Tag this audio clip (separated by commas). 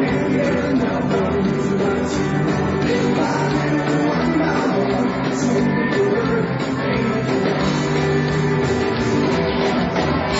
Music, Rock and roll, Rock music